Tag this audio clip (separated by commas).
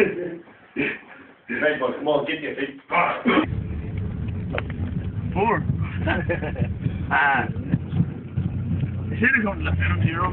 Motor vehicle (road), Vehicle, Car, Speech